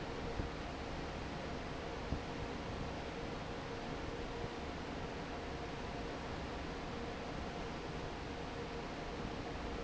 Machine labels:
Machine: fan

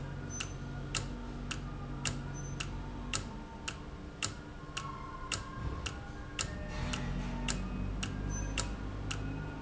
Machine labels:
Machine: valve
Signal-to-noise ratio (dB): -6 dB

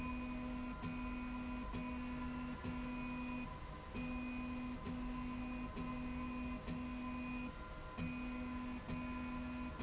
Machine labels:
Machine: slide rail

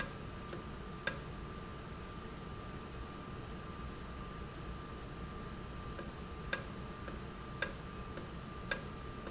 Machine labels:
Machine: valve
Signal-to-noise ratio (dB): 0 dB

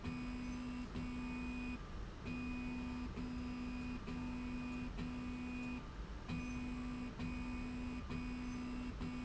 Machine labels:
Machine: slide rail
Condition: normal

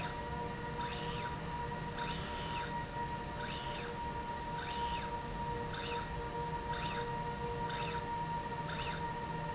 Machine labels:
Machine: slide rail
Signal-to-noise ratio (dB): -6 dB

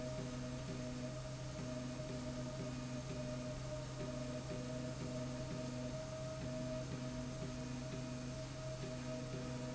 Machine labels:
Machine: slide rail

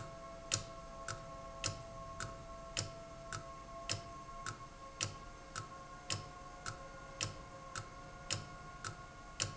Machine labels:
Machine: valve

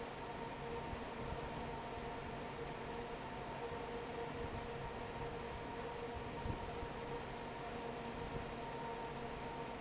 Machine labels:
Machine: fan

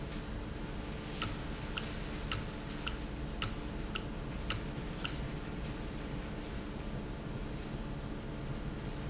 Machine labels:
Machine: valve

